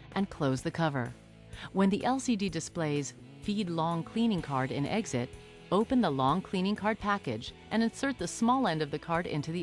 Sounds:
speech, music

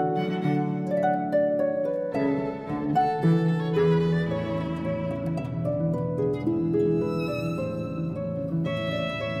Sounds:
cello, violin, music, classical music, bowed string instrument, musical instrument

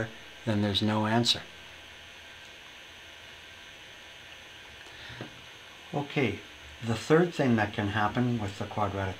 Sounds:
inside a small room, speech

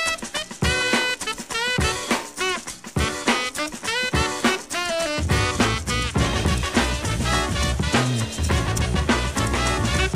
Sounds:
music

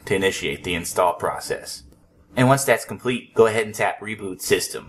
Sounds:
speech

